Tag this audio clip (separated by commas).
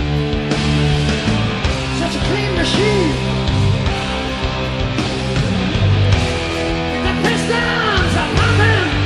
Music